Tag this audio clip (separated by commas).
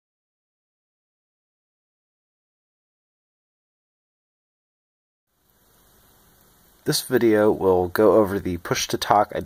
Speech